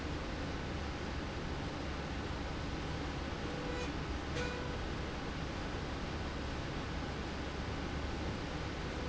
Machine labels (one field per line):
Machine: slide rail